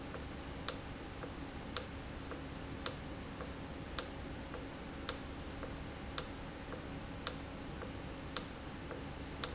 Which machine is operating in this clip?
valve